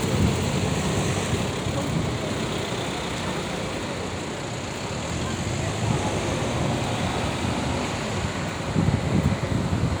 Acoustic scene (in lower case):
street